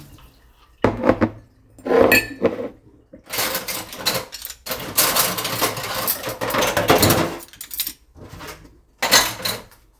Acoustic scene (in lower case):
kitchen